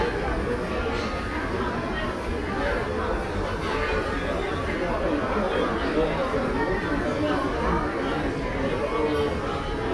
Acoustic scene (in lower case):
crowded indoor space